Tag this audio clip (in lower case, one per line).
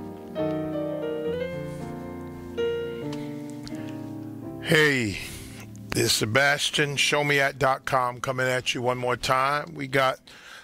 speech
music